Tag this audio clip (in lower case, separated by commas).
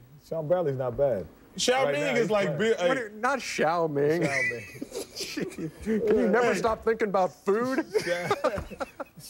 speech